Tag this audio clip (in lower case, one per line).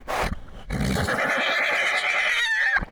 animal
livestock